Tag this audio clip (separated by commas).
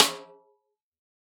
Percussion, Snare drum, Musical instrument, Drum, Music